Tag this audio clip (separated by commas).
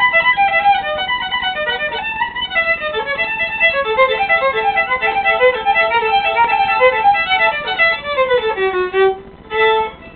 Music, Musical instrument, playing violin, fiddle